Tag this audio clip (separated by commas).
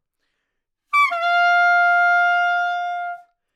woodwind instrument, Music, Musical instrument